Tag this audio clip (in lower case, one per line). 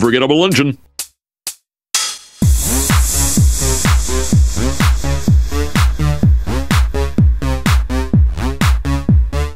techno
speech
music